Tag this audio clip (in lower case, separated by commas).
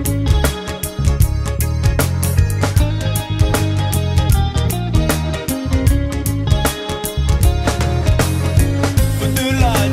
music